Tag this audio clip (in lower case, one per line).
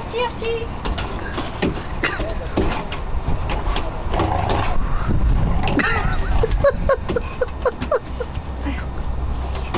dog
speech
pets
whimper (dog)
animal